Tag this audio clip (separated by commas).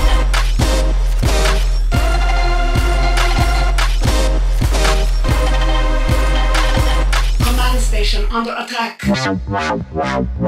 Dubstep, Speech, Music, Electronic music